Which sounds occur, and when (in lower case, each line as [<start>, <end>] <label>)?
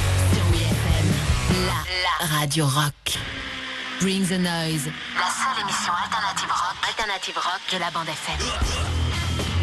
[0.00, 1.81] music
[0.28, 1.15] female speech
[1.42, 2.87] female speech
[1.83, 3.01] background noise
[3.05, 9.62] music
[3.92, 4.87] female speech
[5.13, 8.31] female speech
[8.35, 8.54] grunt
[8.64, 8.84] grunt